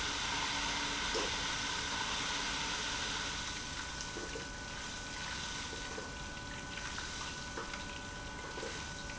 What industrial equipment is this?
pump